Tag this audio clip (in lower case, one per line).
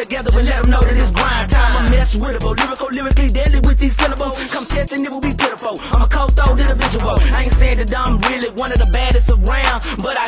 music